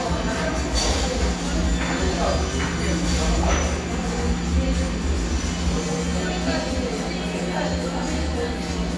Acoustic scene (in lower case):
cafe